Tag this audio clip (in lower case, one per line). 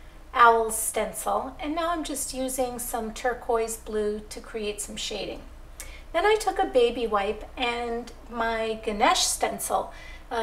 speech